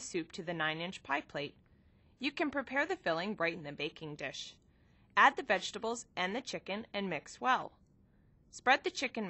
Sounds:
Speech

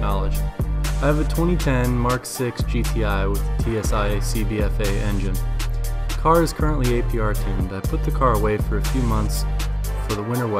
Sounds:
Music, Speech

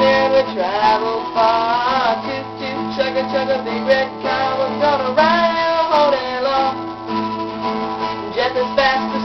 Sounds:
Music

